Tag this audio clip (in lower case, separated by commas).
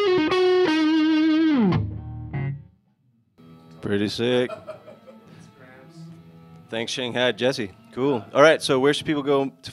speech, music, inside a small room, guitar, plucked string instrument, musical instrument